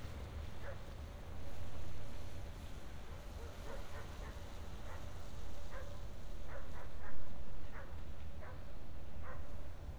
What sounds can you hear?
dog barking or whining